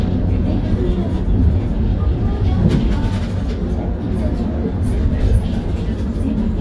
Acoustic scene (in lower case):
bus